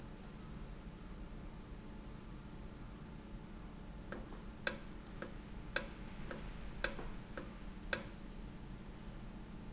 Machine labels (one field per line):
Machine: valve